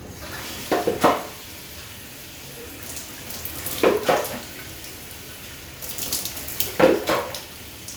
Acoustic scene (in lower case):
restroom